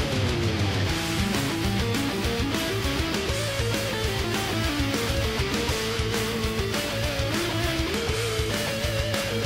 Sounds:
acoustic guitar, guitar, plucked string instrument, strum, music, musical instrument

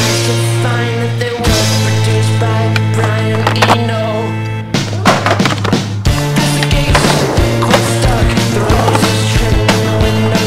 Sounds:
skateboard, music

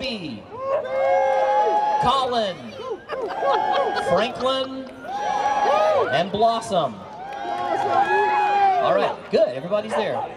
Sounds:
speech

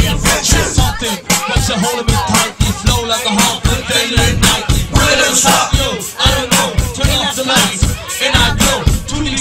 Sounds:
music

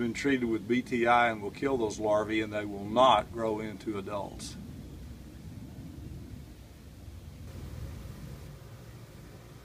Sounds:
speech

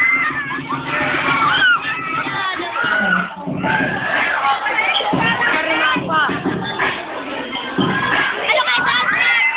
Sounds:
crowd

